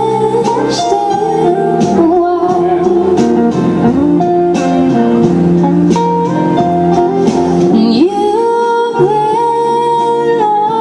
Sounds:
singing, outside, urban or man-made, music

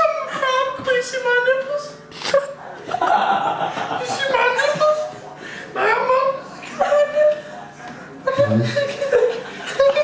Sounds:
speech

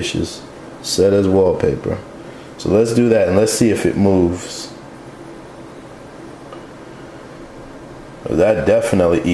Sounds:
speech

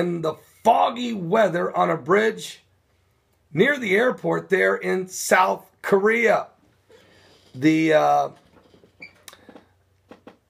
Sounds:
speech

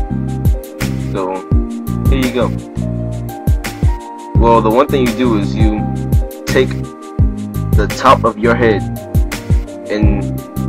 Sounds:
speech, music

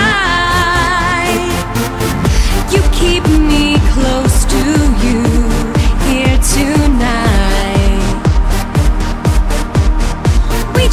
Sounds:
lullaby, music

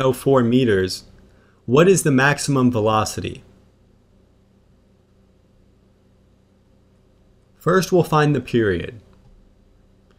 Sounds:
speech

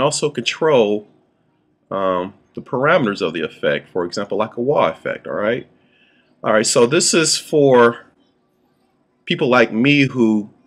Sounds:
speech

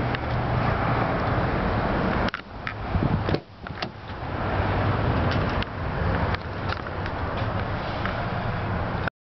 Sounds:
truck, vehicle

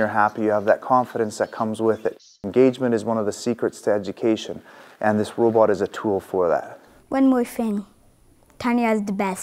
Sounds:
child speech

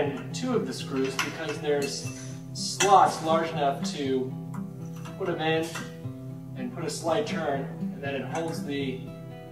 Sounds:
speech, music

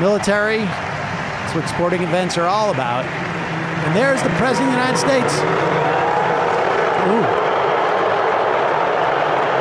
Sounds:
people booing

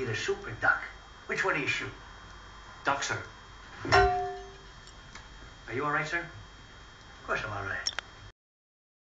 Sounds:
speech

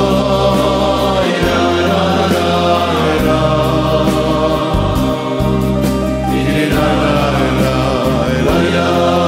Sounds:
choir, music, male singing

